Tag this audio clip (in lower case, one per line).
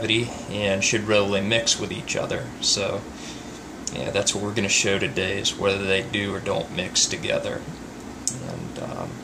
inside a small room
speech